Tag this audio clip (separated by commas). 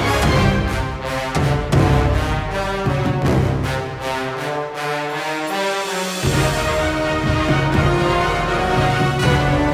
Theme music, Scary music, Music